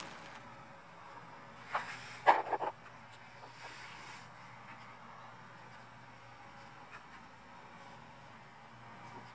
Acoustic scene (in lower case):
elevator